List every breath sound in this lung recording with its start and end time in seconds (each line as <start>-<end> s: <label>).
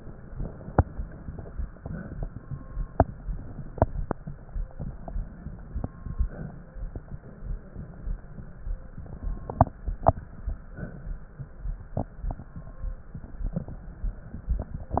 0.00-1.51 s: inhalation
0.00-1.51 s: crackles
1.66-2.30 s: exhalation
4.73-5.89 s: inhalation
4.73-5.89 s: crackles
6.07-6.71 s: exhalation
9.05-10.15 s: inhalation
9.05-10.15 s: crackles
10.66-11.29 s: exhalation